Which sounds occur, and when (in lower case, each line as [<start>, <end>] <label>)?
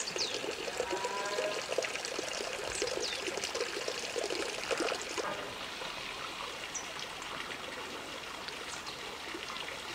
[0.00, 9.94] stream
[0.85, 1.50] moo
[8.66, 8.92] chirp
[9.39, 9.68] quack